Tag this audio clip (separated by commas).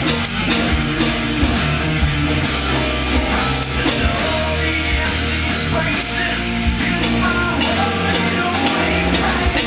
Musical instrument, Music, Heavy metal, Acoustic guitar, Guitar, Plucked string instrument, Strum